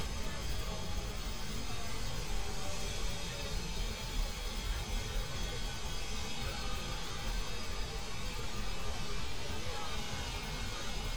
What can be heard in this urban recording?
unidentified impact machinery